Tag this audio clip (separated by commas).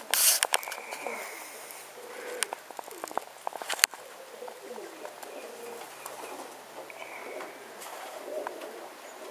dove, pigeon, Animal